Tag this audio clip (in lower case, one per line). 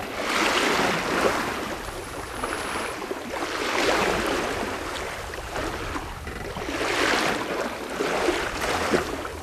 sailing
ocean
water vehicle
sailboat
vehicle